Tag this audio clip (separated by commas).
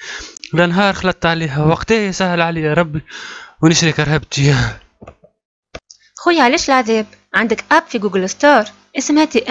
Speech